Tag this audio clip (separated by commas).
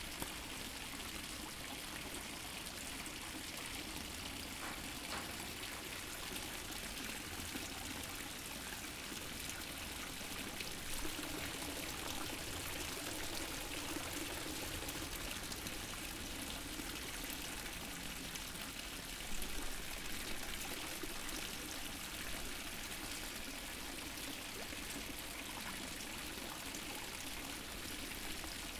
Stream, Water